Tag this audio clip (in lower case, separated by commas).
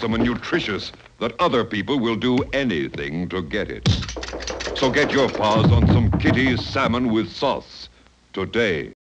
speech